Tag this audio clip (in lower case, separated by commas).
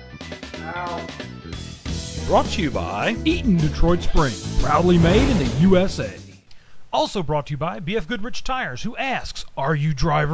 music, drum kit, speech, musical instrument, drum